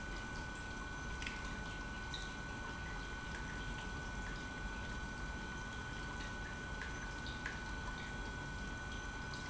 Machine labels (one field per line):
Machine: pump